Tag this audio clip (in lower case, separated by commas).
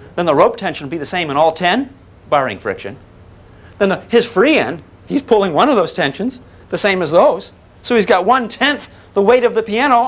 speech